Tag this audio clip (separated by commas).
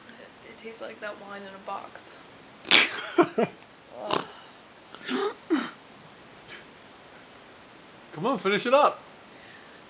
inside a small room, Speech